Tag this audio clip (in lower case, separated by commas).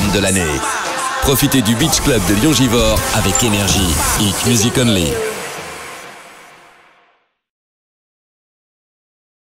music, speech